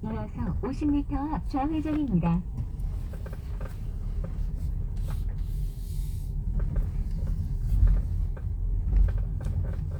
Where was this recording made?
in a car